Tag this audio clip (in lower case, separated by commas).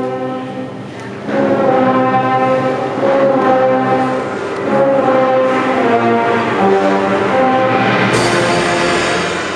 music